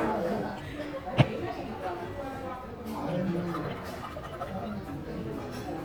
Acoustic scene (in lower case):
crowded indoor space